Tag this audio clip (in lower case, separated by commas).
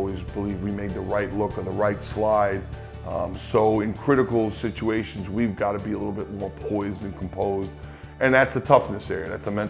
music, speech